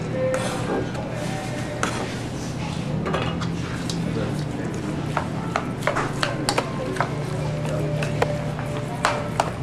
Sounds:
Speech, Music, inside a small room

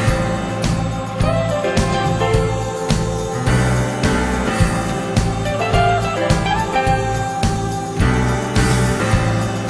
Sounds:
Music

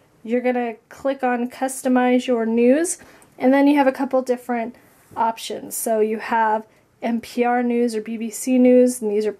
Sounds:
Speech

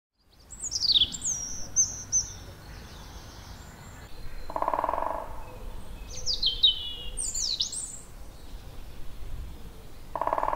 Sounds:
Bird vocalization

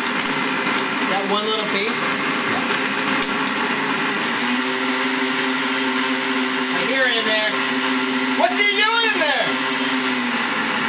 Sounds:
Blender

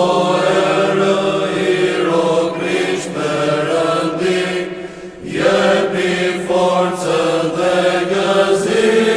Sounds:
Mantra

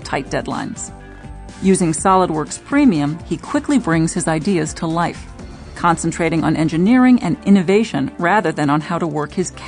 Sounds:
Speech, Music

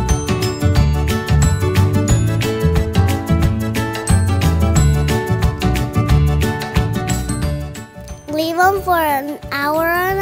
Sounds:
Speech, Music

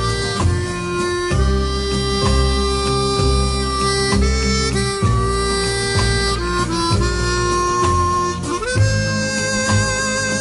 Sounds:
playing harmonica

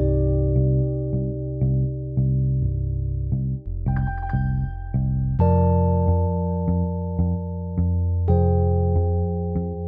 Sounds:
Music

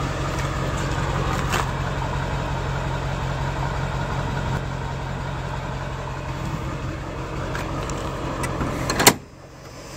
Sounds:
Heavy engine (low frequency), Vehicle, Bus, outside, urban or man-made

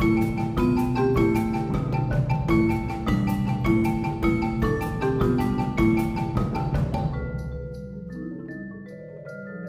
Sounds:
Vibraphone, Marimba, Music

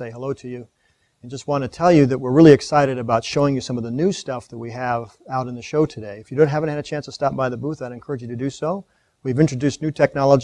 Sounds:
Speech

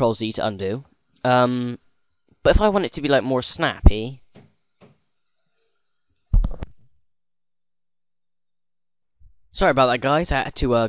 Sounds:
Speech

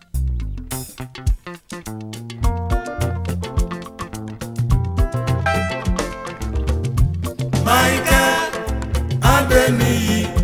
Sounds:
Music of Africa, Music

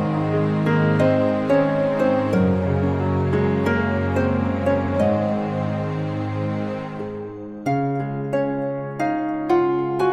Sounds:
Music

